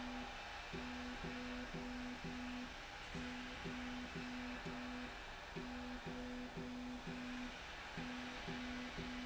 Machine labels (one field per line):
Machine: slide rail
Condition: normal